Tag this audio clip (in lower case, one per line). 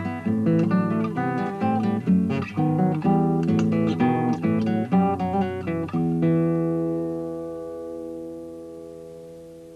musical instrument
plucked string instrument
music
strum
guitar